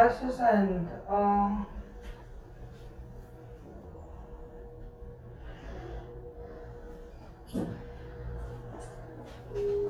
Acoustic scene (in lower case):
elevator